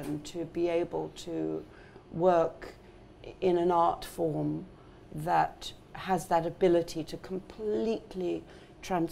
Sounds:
Speech

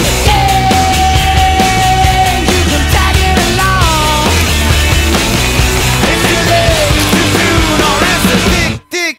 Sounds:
Music

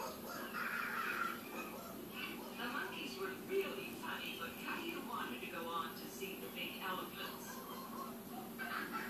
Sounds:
Speech

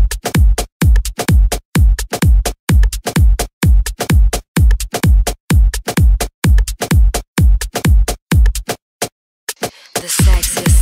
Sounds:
Music

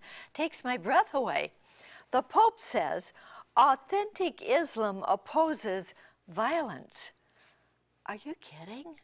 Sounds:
Speech

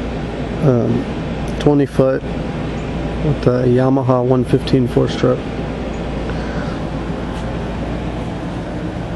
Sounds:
Speech

